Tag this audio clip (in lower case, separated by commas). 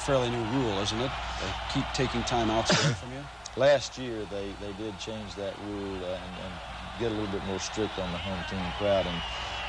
speech